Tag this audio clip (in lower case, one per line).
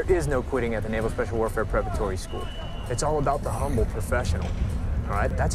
speech